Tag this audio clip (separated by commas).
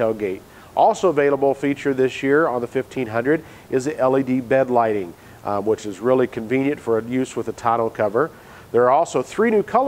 Speech